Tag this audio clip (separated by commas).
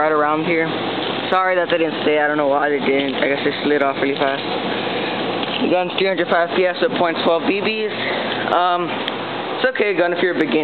Speech